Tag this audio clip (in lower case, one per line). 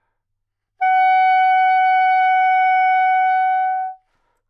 music
musical instrument
woodwind instrument